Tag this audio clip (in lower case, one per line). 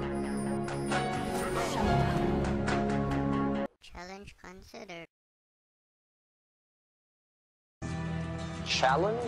speech
music